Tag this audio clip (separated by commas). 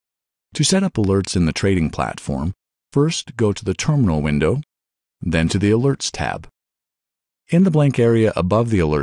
Speech